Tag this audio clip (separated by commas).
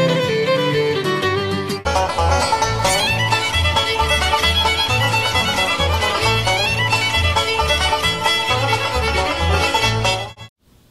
Music, Pizzicato, Musical instrument, Violin